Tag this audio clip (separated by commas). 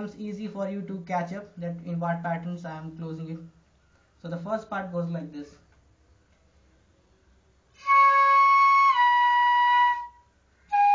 Musical instrument, Speech, Flute, woodwind instrument, Music